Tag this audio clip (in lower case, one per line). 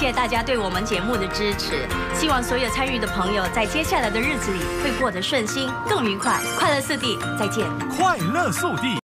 music
speech